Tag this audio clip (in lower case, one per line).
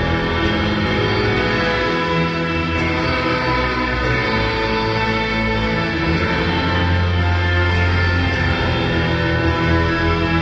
musical instrument
effects unit
plucked string instrument
music
guitar